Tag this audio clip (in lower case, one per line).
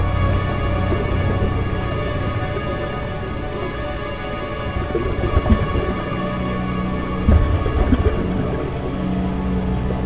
outside, rural or natural
music